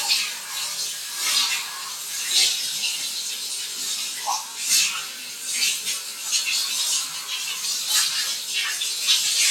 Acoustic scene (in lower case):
restroom